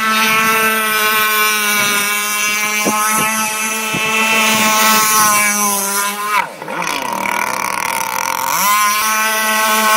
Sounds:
speedboat

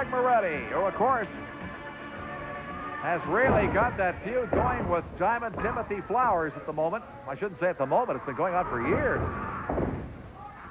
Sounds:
Speech, Music

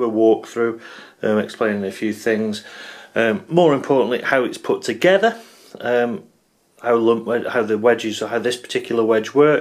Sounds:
Speech

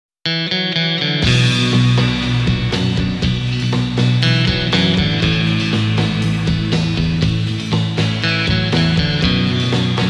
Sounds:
Progressive rock

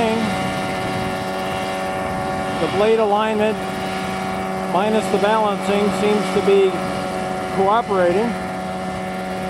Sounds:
Speech

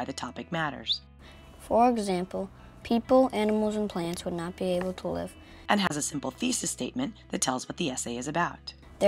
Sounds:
Speech, Music

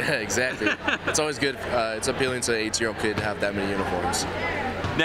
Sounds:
Speech

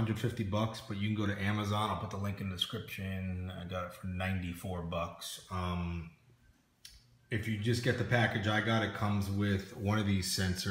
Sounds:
Speech

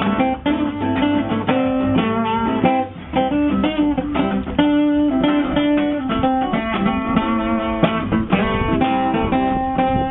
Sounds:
Musical instrument, Music, Guitar

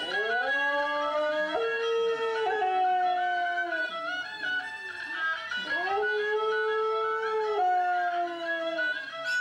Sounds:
Music, Yip

